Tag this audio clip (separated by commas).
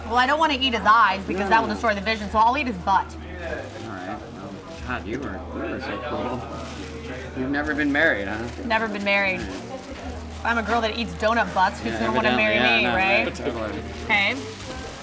Speech, Conversation, Human voice